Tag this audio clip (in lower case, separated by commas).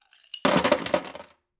home sounds, sink (filling or washing)